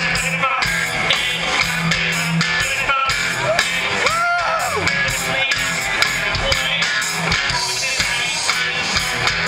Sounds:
Music

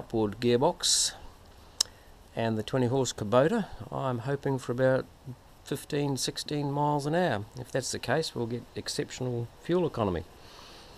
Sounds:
Speech

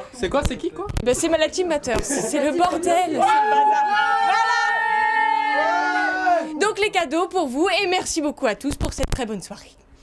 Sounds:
Speech

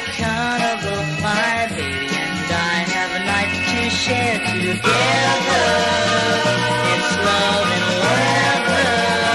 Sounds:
Sound effect, Music

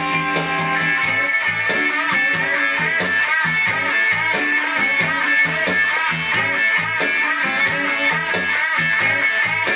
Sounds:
Music

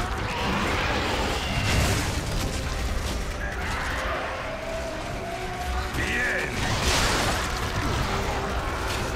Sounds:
Speech, Music

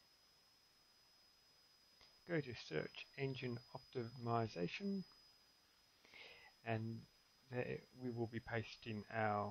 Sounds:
Speech

